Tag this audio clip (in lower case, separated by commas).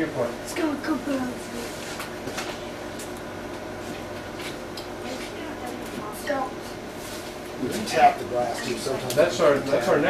speech